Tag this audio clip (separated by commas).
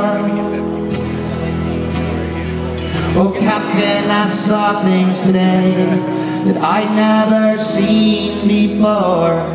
Music, Independent music